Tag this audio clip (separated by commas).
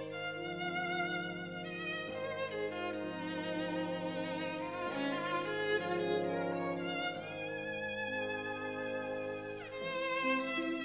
fiddle, Musical instrument, Music